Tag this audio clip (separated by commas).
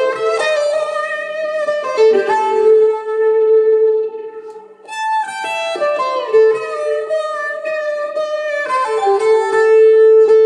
Bowed string instrument, Musical instrument, inside a small room, fiddle, Music